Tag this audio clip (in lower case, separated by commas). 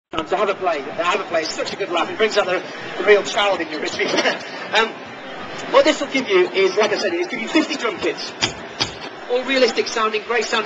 speech, inside a large room or hall